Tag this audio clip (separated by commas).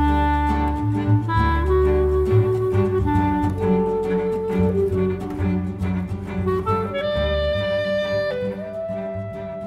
Cello, Bowed string instrument, fiddle, Double bass